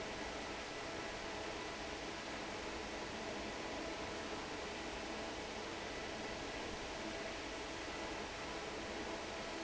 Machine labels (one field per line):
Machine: fan